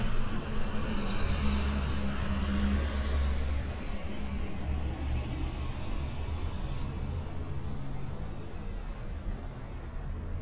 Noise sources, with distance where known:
engine of unclear size

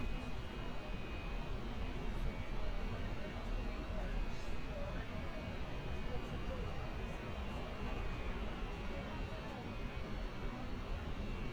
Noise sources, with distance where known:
background noise

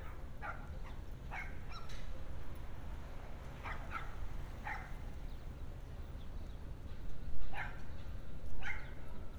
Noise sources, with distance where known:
dog barking or whining, far

